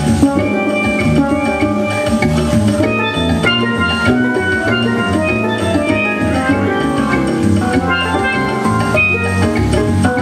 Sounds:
independent music, music

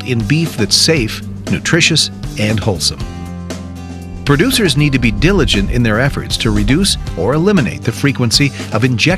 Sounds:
music, speech

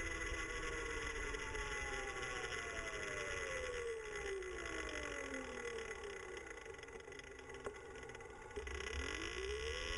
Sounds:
motorcycle, vehicle

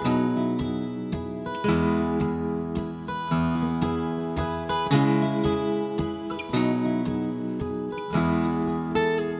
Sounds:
strum, music

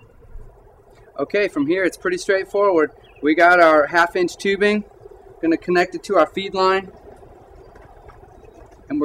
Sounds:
speech

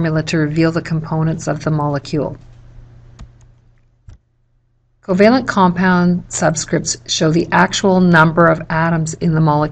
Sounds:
speech

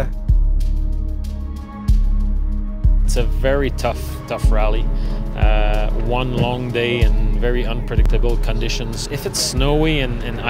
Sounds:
music, speech

